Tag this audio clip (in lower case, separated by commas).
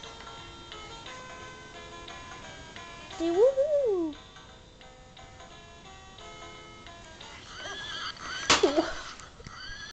horse, neigh, speech, music